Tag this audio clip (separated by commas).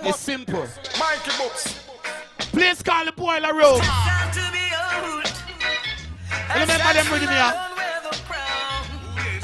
Speech, Music